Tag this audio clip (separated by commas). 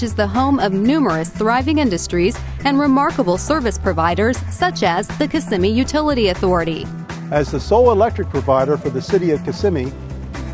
Music, Speech